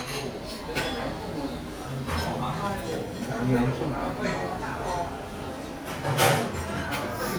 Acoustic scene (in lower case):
restaurant